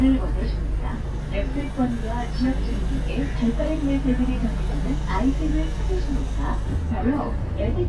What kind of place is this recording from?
bus